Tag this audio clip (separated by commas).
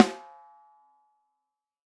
Percussion, Snare drum, Music, Musical instrument, Drum